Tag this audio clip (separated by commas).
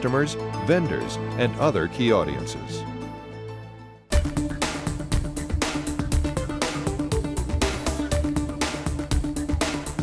Music, Speech